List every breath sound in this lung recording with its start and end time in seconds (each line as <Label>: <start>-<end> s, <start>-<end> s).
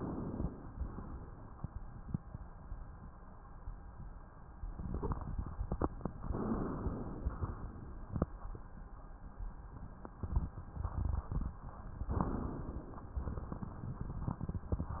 Inhalation: 6.19-7.29 s, 12.06-13.12 s
Exhalation: 7.29-8.18 s, 13.12-14.43 s